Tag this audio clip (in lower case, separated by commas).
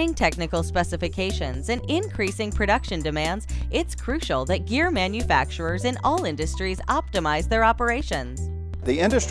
music, speech